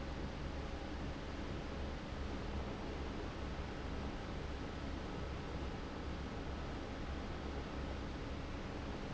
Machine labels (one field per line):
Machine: fan